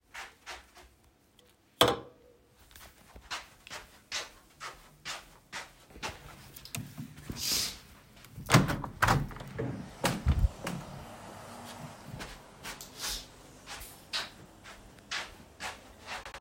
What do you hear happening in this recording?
I went to the table, put the cup on it, went to window, moved the curtain, opened the window